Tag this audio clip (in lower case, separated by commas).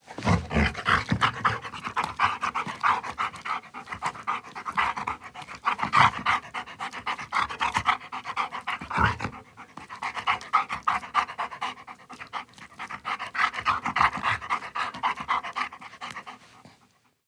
animal, pets, dog